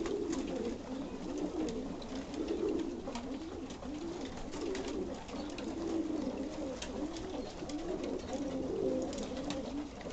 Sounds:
dove, inside a small room, Bird

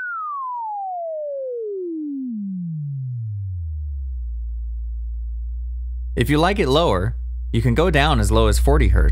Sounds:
Speech

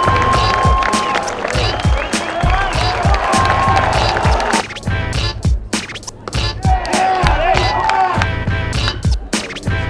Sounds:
Music, Speech

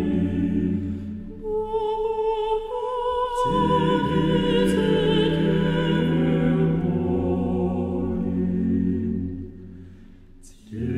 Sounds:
Music, Mantra

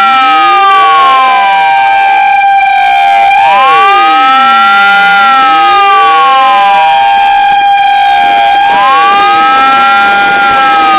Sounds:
Vehicle horn, Vehicle, truck horn

